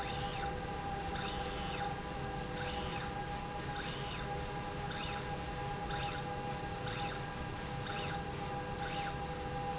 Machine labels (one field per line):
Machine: slide rail